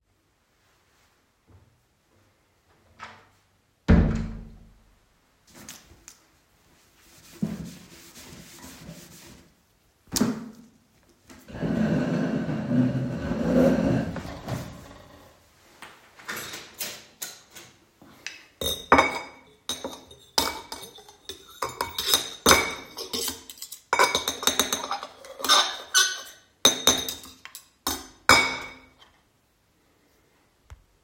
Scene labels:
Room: kitchen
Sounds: door, cutlery and dishes

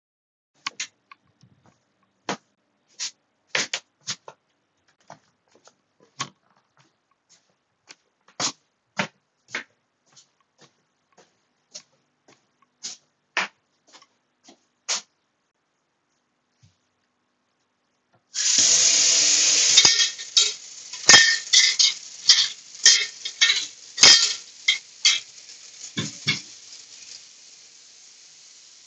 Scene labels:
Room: bedroom, living room, kitchen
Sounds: footsteps, running water, cutlery and dishes

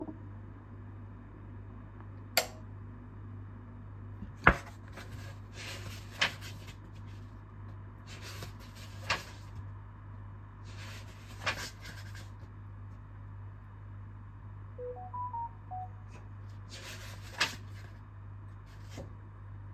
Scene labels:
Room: office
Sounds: light switch, phone ringing

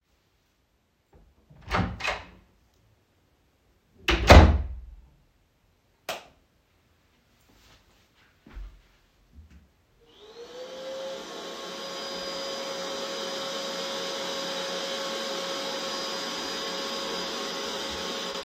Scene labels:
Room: living room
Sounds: door (more than once), light switch, footsteps, vacuum cleaner

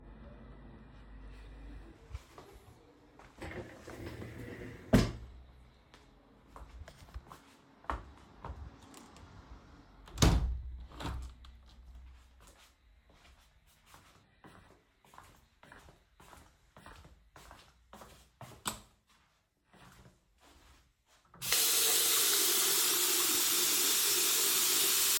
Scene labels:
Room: living room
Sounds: footsteps, window, light switch, running water

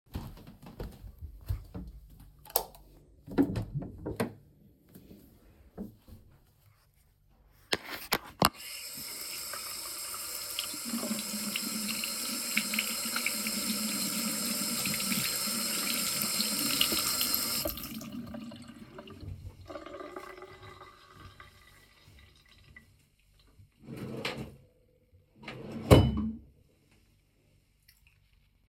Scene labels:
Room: bedroom, bathroom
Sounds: footsteps, light switch, door, running water, wardrobe or drawer

